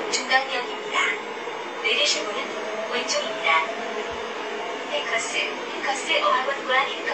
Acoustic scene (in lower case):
subway train